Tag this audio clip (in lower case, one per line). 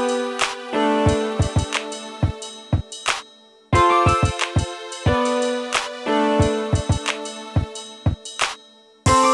sampler
drum machine
music